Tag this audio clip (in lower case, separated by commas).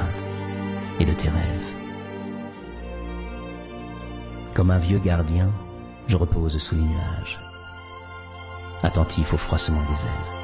music, speech